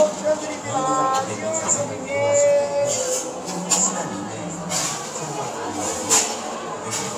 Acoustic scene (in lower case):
cafe